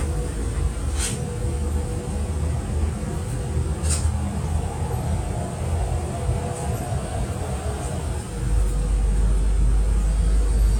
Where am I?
on a bus